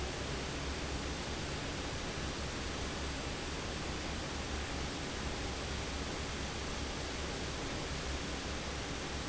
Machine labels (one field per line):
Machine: fan